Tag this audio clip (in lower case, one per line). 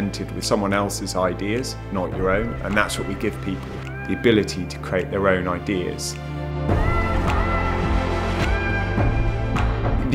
speech
music